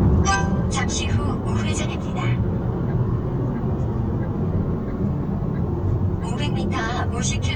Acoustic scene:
car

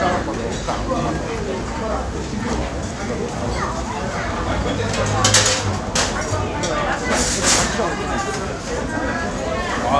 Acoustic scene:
restaurant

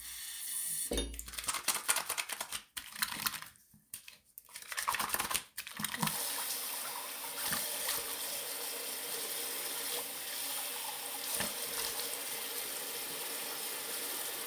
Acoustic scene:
restroom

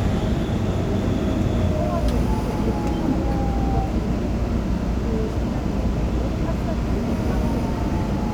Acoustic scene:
subway train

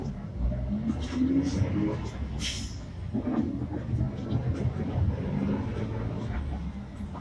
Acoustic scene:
bus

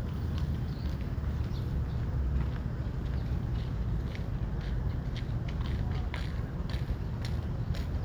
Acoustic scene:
park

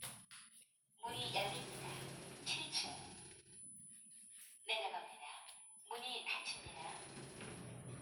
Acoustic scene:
elevator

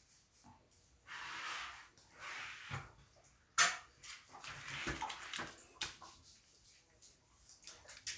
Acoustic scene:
restroom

